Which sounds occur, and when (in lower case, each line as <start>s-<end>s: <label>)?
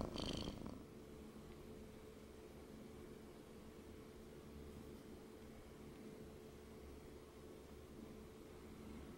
0.0s-0.8s: purr
0.0s-9.1s: mechanisms
1.4s-1.5s: tick
5.4s-5.5s: tick
5.9s-6.0s: tick